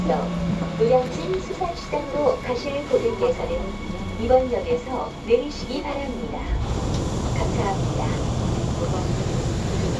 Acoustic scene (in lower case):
subway train